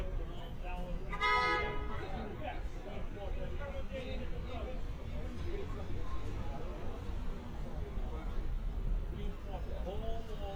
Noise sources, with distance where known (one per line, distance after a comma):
car horn, near
person or small group talking, near